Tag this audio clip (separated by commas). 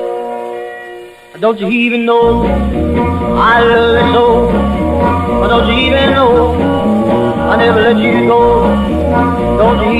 Music, Rock and roll